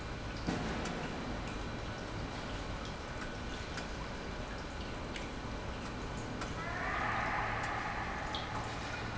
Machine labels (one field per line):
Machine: pump